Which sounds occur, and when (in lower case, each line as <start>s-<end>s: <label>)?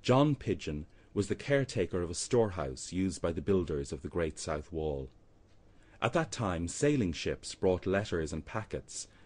0.0s-0.9s: man speaking
0.0s-9.2s: mechanisms
0.8s-1.1s: breathing
1.1s-5.1s: man speaking
5.4s-5.6s: generic impact sounds
5.7s-5.9s: breathing
6.0s-7.5s: man speaking
7.6s-9.0s: man speaking
9.1s-9.2s: breathing